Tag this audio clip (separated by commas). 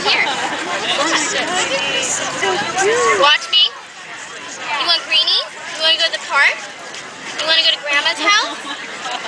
Speech